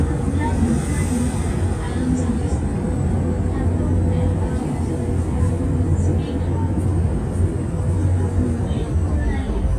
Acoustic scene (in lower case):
bus